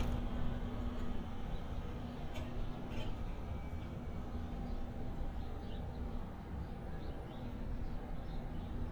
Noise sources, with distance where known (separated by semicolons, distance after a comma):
engine of unclear size